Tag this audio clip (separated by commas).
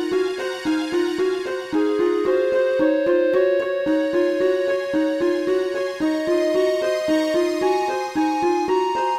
Music, Soundtrack music